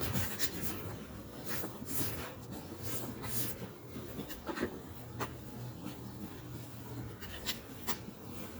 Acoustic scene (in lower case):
residential area